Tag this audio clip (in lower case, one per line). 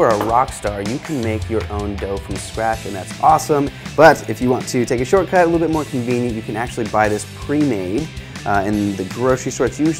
music
speech